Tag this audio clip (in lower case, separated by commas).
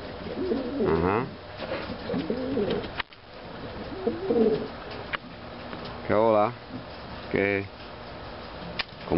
speech, inside a small room, pigeon, bird